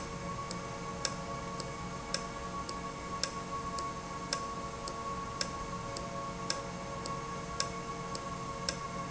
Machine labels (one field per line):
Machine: valve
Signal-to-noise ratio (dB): -6 dB